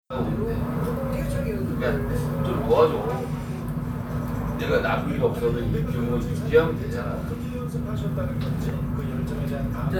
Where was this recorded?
in a crowded indoor space